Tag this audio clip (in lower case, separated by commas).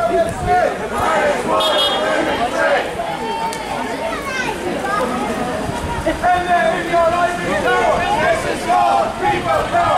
speech